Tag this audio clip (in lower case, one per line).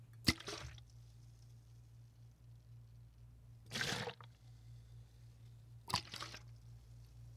splatter
liquid